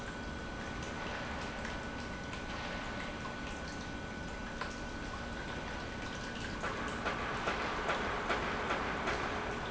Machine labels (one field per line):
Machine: pump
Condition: normal